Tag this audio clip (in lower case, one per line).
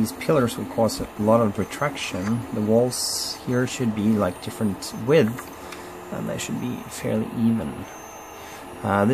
speech